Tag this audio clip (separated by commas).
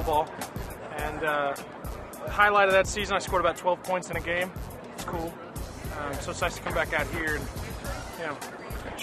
Speech, Music